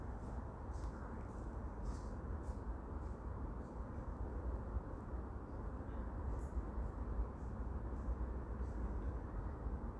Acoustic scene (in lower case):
park